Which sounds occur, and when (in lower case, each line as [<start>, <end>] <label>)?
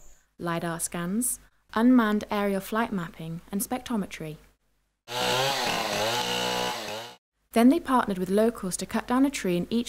[0.00, 9.85] background noise
[0.00, 0.33] breathing
[0.34, 1.45] female speech
[1.50, 1.66] breathing
[1.67, 4.28] female speech
[5.04, 7.16] chainsaw
[7.51, 9.85] female speech